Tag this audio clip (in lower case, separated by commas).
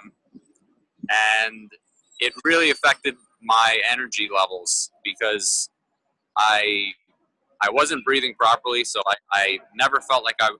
speech